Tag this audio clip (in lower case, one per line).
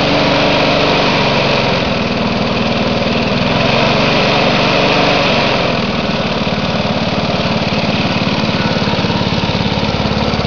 vehicle
lawn mowing
lawn mower